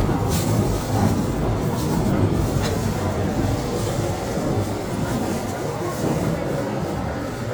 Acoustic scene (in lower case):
subway train